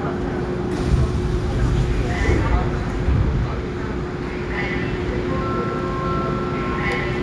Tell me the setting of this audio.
subway train